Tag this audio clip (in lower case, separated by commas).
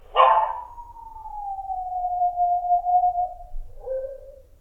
animal, domestic animals, dog